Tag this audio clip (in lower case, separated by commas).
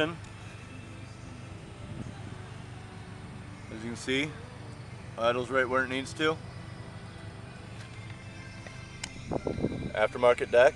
speech, music